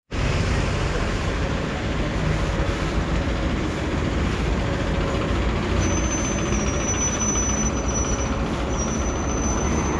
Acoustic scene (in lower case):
street